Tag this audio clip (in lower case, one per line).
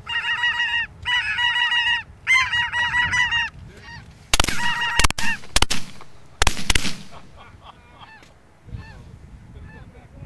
honk
bird
goose
bird vocalization
fowl
goose honking